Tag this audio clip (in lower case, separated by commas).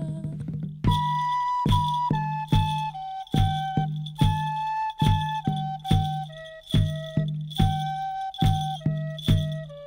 lullaby, music